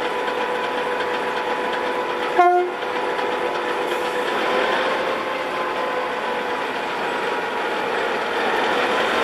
A large engine idols, a train horn blows